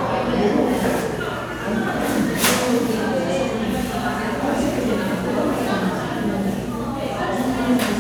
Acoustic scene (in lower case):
crowded indoor space